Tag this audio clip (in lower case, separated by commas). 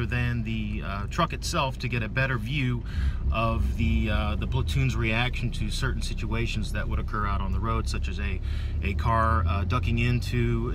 car, vehicle, speech